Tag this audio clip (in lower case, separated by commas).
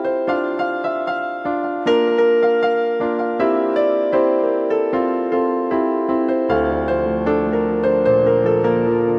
music, tender music